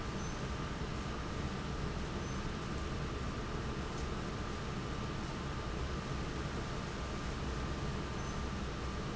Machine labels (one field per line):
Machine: fan